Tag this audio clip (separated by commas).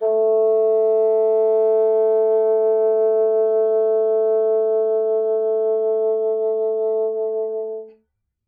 Wind instrument, Music, Musical instrument